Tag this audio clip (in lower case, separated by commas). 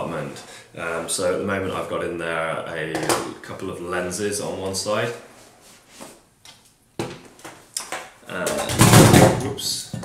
speech